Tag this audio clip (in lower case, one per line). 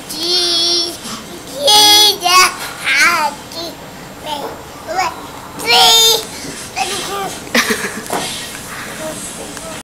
child singing